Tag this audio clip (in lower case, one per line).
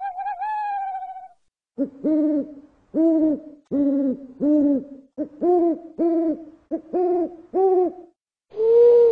owl hooting